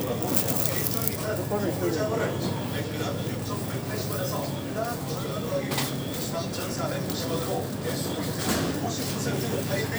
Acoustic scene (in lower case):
crowded indoor space